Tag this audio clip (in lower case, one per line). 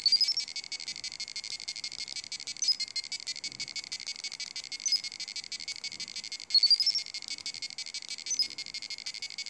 inside a small room